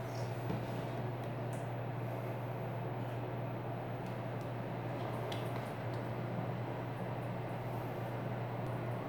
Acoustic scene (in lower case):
elevator